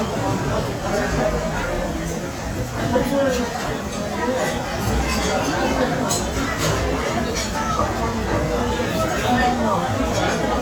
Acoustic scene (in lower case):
restaurant